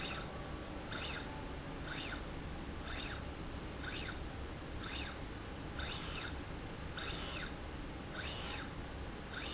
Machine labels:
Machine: slide rail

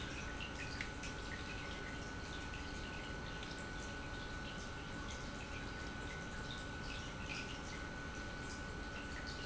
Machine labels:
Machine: pump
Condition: normal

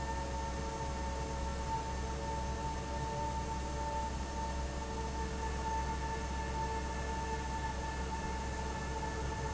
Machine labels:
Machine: fan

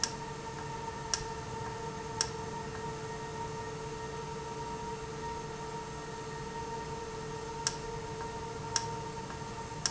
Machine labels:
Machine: valve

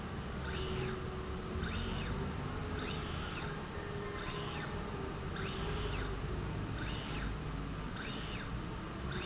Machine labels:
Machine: slide rail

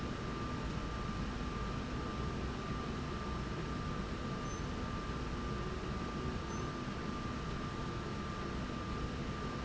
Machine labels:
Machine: slide rail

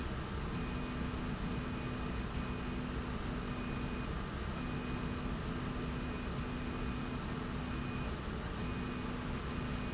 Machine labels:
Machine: slide rail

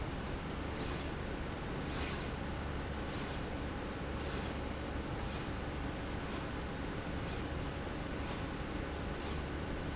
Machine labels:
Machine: slide rail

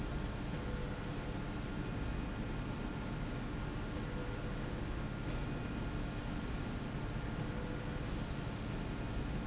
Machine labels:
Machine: slide rail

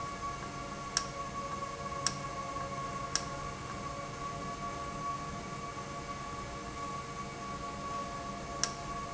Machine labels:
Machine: valve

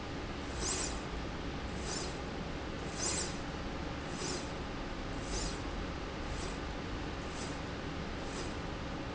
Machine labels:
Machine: slide rail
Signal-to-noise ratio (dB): -6 dB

